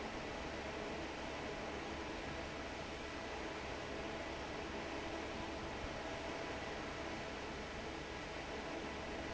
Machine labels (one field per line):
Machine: fan